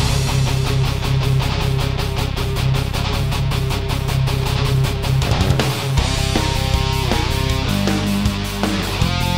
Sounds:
Blues, Music

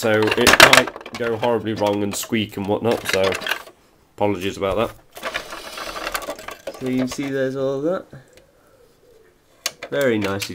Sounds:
Speech, inside a small room

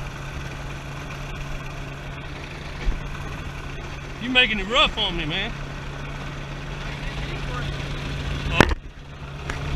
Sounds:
Speech

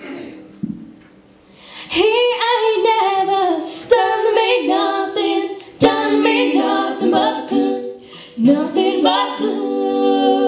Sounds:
Female singing, Singing

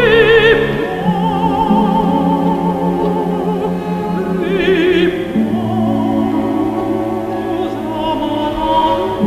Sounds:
Orchestra, Opera, Music

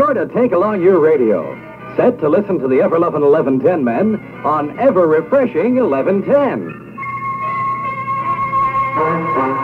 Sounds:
Speech, Music

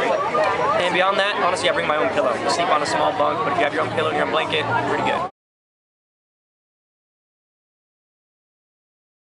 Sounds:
Speech

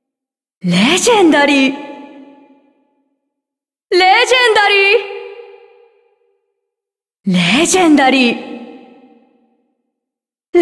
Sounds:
Speech

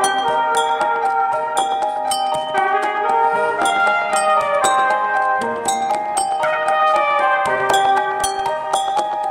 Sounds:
Musical instrument, Trumpet, Music

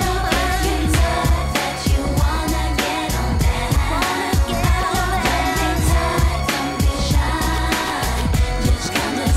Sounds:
Music of Asia

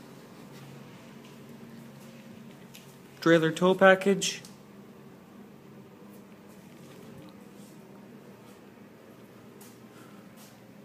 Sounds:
Speech

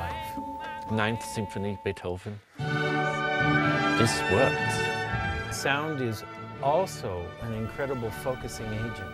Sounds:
Speech, Music

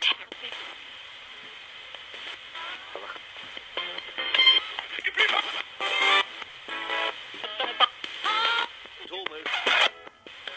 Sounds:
Music, inside a small room

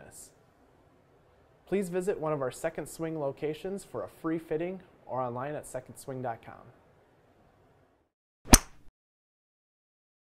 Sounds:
Speech

